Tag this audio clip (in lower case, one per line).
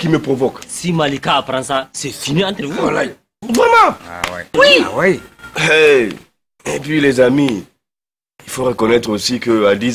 speech